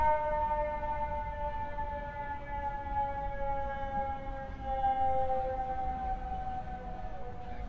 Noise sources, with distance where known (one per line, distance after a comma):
siren